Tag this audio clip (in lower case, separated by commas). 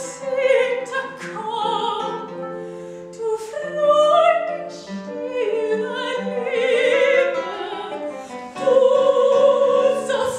music, opera